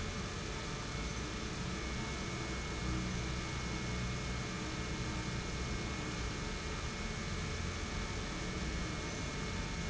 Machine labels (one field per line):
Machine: pump